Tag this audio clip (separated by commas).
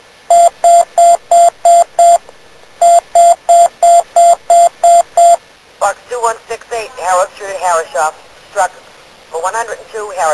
Alarm, Speech